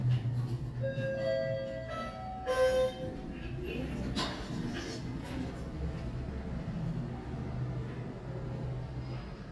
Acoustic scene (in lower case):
elevator